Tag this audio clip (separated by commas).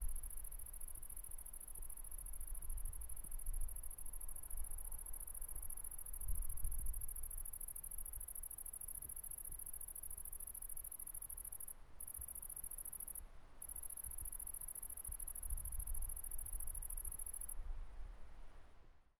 Animal, Wild animals, Cricket, Insect